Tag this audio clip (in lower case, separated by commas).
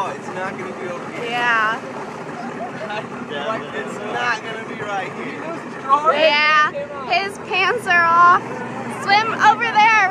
speech, gurgling